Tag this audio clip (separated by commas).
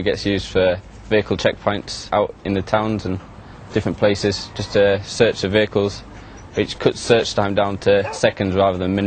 Speech, Bow-wow